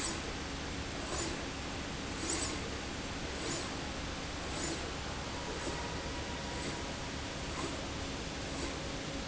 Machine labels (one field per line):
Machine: slide rail